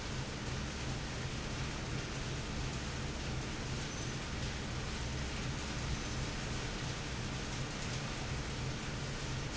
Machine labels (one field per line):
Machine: fan